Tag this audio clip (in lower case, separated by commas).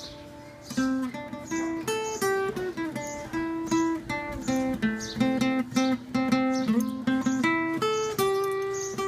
playing acoustic guitar, music, acoustic guitar, strum, musical instrument, plucked string instrument